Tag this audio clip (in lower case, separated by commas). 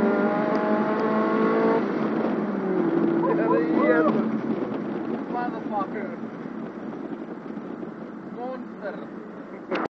speech, car, motor vehicle (road), vehicle